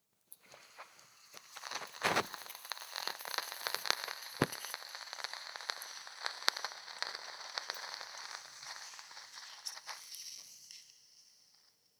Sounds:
Fire

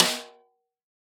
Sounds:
Percussion, Musical instrument, Snare drum, Drum, Music

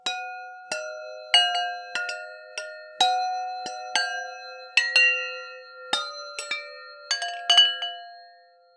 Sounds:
Bell, Chime

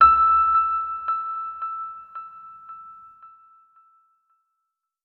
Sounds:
Piano, Keyboard (musical), Musical instrument, Music

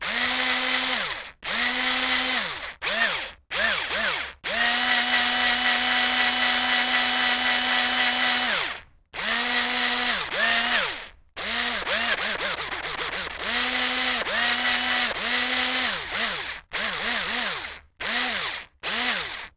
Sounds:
Tools

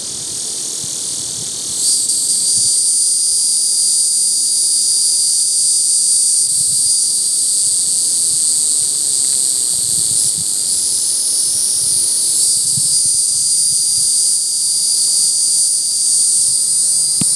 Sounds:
Animal, Insect, Wild animals

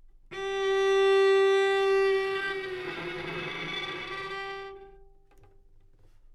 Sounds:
Music, Bowed string instrument, Musical instrument

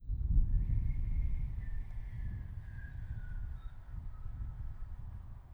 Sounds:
Wind

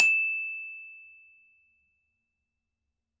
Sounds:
Mallet percussion, Music, Musical instrument, Percussion, Glockenspiel

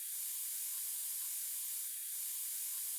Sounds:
Hiss

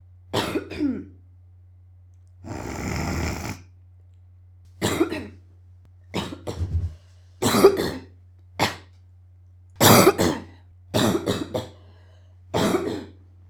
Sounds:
Respiratory sounds, Cough

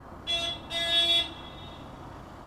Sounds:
Motor vehicle (road), car horn, Vehicle, roadway noise, Car, Alarm

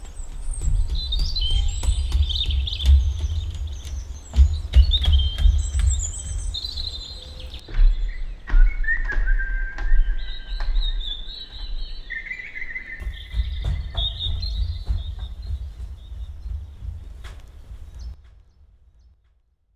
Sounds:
Bird, Animal, Bird vocalization, Wild animals

